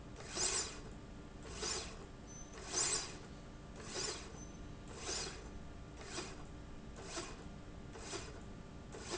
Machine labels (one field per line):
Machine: slide rail